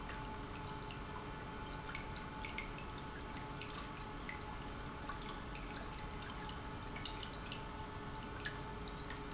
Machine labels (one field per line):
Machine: pump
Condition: normal